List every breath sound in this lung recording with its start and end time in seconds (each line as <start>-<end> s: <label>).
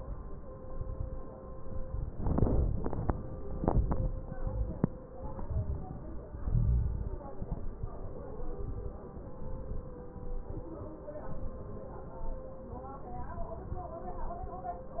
0.62-1.29 s: exhalation
0.62-1.29 s: crackles
2.11-2.77 s: inhalation
2.11-2.77 s: crackles
3.50-4.16 s: exhalation
3.50-4.16 s: crackles
4.37-5.03 s: inhalation
4.37-5.03 s: crackles
5.17-6.02 s: exhalation
5.28-5.95 s: crackles
6.37-7.22 s: inhalation
6.37-7.22 s: crackles
7.37-7.83 s: crackles
7.39-7.85 s: exhalation
8.57-9.02 s: inhalation
8.57-9.02 s: crackles
9.35-9.97 s: crackles
9.35-10.01 s: exhalation
10.18-10.85 s: inhalation
10.20-10.83 s: crackles
11.02-11.70 s: crackles
11.06-11.72 s: exhalation
11.91-12.60 s: crackles
11.95-12.62 s: inhalation